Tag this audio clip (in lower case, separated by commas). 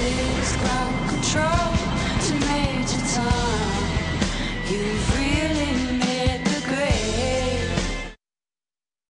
music